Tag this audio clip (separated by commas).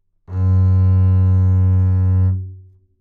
Musical instrument, Bowed string instrument, Music